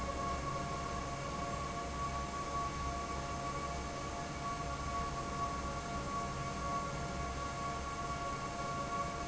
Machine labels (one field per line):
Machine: fan